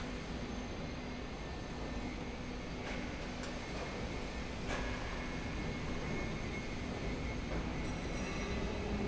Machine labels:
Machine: slide rail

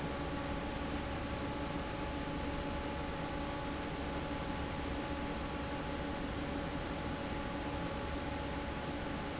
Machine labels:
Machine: fan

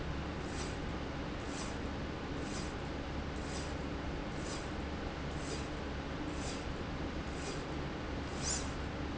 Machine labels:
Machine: slide rail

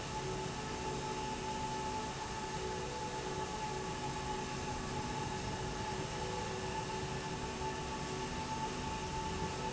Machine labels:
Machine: slide rail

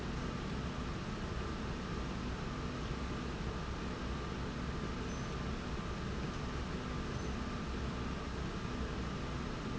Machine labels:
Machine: slide rail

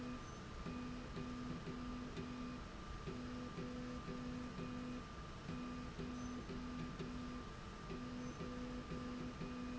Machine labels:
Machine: slide rail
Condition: normal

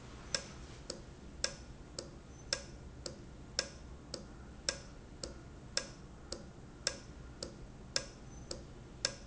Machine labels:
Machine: valve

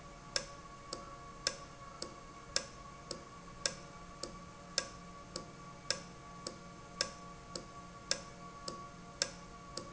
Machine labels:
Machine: valve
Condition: normal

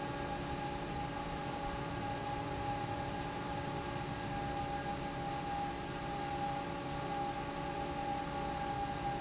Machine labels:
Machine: fan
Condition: normal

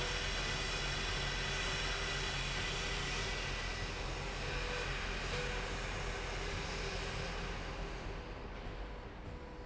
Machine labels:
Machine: slide rail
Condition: normal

